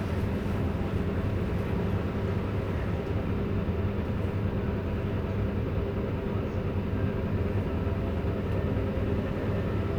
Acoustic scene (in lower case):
bus